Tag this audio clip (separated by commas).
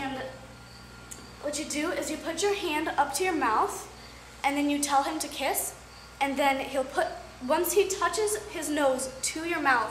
Speech